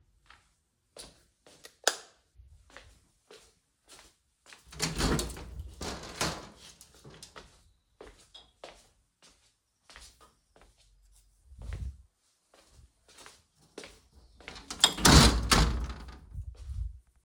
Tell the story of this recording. I flipped the light switch, walked to the window and opened it. Then I walked around the room and went to close the window.